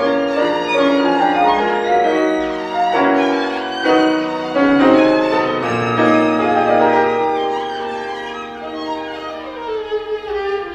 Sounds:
Music, fiddle, Musical instrument

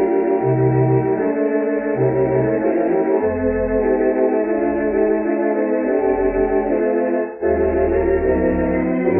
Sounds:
Organ, Music

